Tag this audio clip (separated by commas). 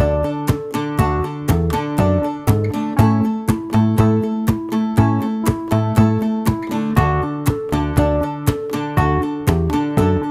Music